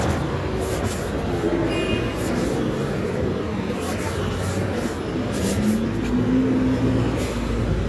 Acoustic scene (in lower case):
residential area